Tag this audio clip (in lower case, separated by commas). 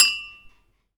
dishes, pots and pans, home sounds, glass